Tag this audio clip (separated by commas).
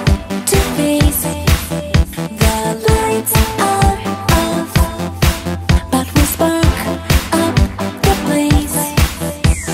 Music